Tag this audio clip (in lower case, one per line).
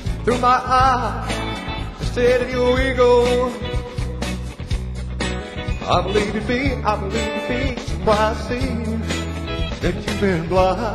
music